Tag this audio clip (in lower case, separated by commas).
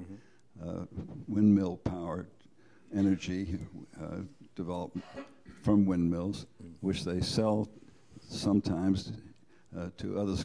speech